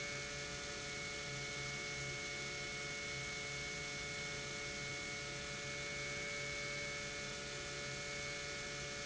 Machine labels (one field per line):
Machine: pump